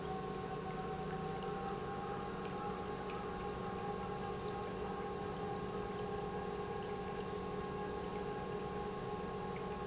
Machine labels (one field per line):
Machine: pump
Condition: normal